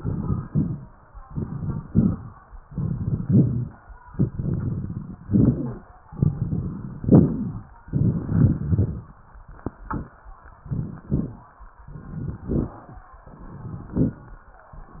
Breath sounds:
Inhalation: 0.00-0.44 s, 1.29-1.78 s, 2.69-3.19 s, 4.21-5.16 s, 6.11-7.00 s, 7.85-8.54 s, 10.62-11.10 s, 11.91-12.39 s, 13.34-13.89 s
Exhalation: 0.49-0.93 s, 1.84-2.34 s, 3.28-3.78 s, 5.22-5.83 s, 7.06-7.67 s, 8.59-9.15 s, 11.08-11.56 s, 12.46-12.94 s, 13.95-14.33 s
Crackles: 0.00-0.44 s, 0.49-0.93 s, 1.29-1.78 s, 1.84-2.34 s, 2.69-3.19 s, 3.28-3.78 s, 4.21-5.16 s, 5.22-5.83 s, 6.11-7.00 s, 7.06-7.67 s, 7.85-8.54 s, 8.59-9.15 s, 10.57-11.04 s, 11.08-11.56 s, 11.91-12.39 s, 12.46-12.94 s, 13.34-13.89 s, 13.95-14.33 s

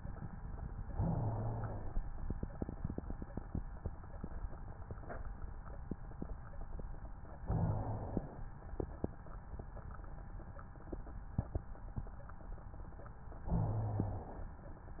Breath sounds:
Inhalation: 0.89-2.01 s, 7.44-8.56 s, 13.47-14.59 s
Rhonchi: 0.89-2.01 s, 7.44-8.56 s, 13.47-14.59 s

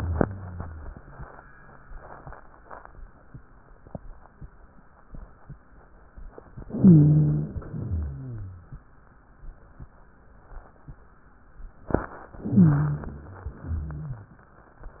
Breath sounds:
Inhalation: 6.68-7.55 s, 12.43-13.30 s
Exhalation: 7.82-8.69 s, 13.53-14.40 s
Rhonchi: 0.00-2.26 s, 6.68-7.55 s, 7.82-8.69 s, 12.43-13.30 s, 13.53-14.40 s

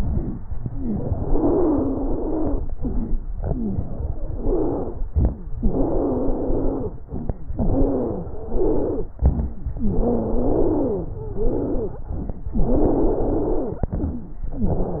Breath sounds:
Inhalation: 0.00-0.41 s, 2.75-3.24 s, 5.09-5.55 s, 7.05-7.51 s, 9.20-9.66 s, 12.07-12.53 s, 14.54-15.00 s
Exhalation: 0.72-2.60 s, 3.34-4.98 s, 5.61-6.99 s, 7.60-9.10 s, 9.79-12.04 s, 12.60-14.29 s
Stridor: 0.72-2.60 s, 2.75-3.24 s, 3.34-4.98 s, 5.61-6.99 s, 7.60-9.10 s, 9.79-12.04 s, 12.60-14.29 s, 14.54-15.00 s
Crackles: 0.00-0.41 s, 5.09-5.55 s, 7.05-7.51 s, 9.20-9.66 s, 12.07-12.53 s

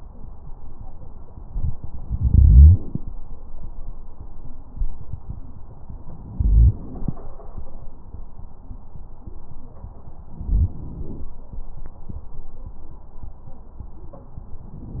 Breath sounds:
Inhalation: 2.03-3.09 s, 6.21-7.27 s, 10.26-11.32 s
Crackles: 10.26-11.32 s

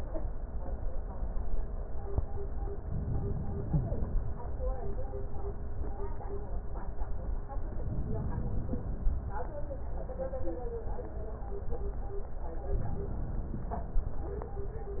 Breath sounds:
Inhalation: 2.90-4.23 s, 7.76-9.09 s, 12.62-13.95 s

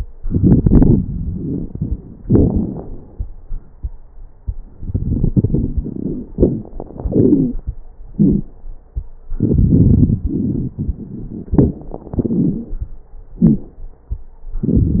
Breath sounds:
Inhalation: 0.15-1.98 s, 4.75-6.27 s, 9.33-11.54 s, 14.65-15.00 s
Exhalation: 2.21-3.20 s, 6.35-7.62 s, 11.55-12.81 s
Wheeze: 6.35-6.67 s, 7.06-7.61 s, 8.15-8.50 s, 12.15-12.81 s, 13.43-13.70 s
Crackles: 0.15-1.98 s, 2.21-3.20 s, 4.75-6.27 s, 9.33-11.54 s, 14.65-15.00 s

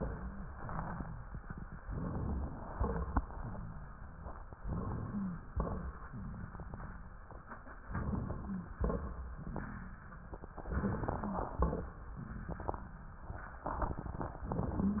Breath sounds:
Inhalation: 1.88-2.66 s, 4.63-5.49 s, 7.91-8.75 s, 10.70-11.55 s
Exhalation: 2.77-3.23 s, 5.56-6.09 s, 8.79-9.43 s, 11.57-12.03 s
Wheeze: 5.05-5.49 s, 8.44-8.75 s, 10.70-11.55 s
Crackles: 2.77-3.23 s, 5.56-6.09 s, 8.79-9.43 s, 11.57-12.03 s

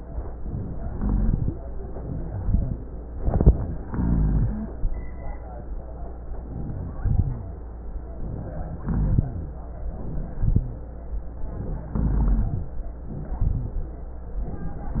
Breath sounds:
Inhalation: 0.87-1.48 s, 3.85-4.69 s, 6.72-7.55 s, 8.84-9.58 s, 11.97-12.75 s
Exhalation: 2.22-2.77 s, 9.92-10.80 s, 13.07-13.95 s
Rhonchi: 0.87-1.48 s, 2.22-2.77 s, 3.85-4.69 s, 6.72-7.55 s, 8.84-9.58 s, 9.94-10.82 s, 11.97-12.75 s, 13.07-13.95 s

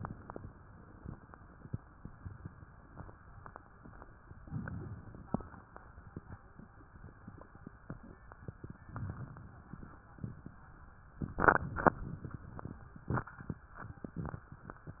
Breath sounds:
Inhalation: 4.46-5.62 s, 8.90-10.06 s

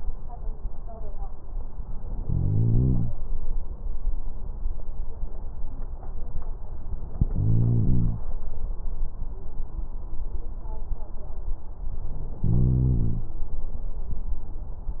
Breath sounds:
Inhalation: 2.22-3.12 s, 7.23-8.28 s, 12.40-13.29 s

